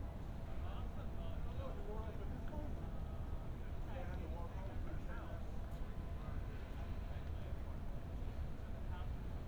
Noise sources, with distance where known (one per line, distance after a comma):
person or small group talking